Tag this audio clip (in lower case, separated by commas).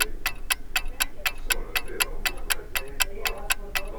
mechanisms, clock, tick-tock